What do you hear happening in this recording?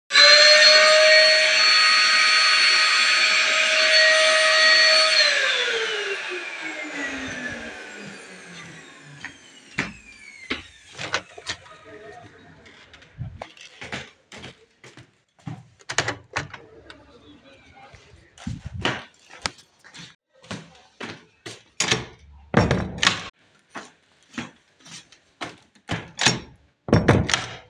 I was vacuuming the hallway, then stopped for a minute. I decided to walk to the bedroom windows and opened them to let some fresh air into the room. After that, I closed both bedroom doors so that there would be no air current in the apartment.